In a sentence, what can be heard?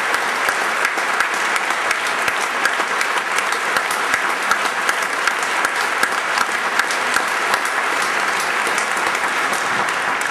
People clapping hands